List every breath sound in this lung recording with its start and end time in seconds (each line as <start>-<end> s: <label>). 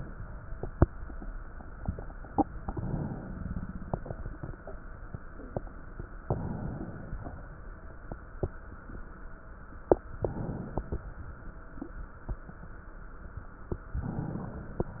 2.10-3.28 s: inhalation
2.10-3.28 s: crackles
3.26-4.86 s: exhalation
3.30-4.86 s: crackles
6.21-7.15 s: inhalation
6.21-7.15 s: crackles
7.15-9.49 s: exhalation
7.15-9.49 s: crackles
9.87-10.79 s: crackles
9.89-10.81 s: inhalation
10.79-12.19 s: exhalation
10.79-12.19 s: crackles
13.72-14.80 s: inhalation
13.72-14.80 s: crackles